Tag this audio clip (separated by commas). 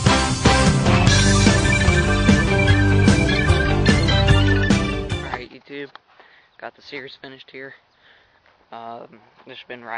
Speech, Music